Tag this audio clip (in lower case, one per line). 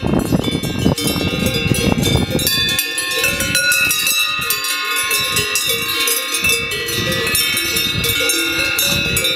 cattle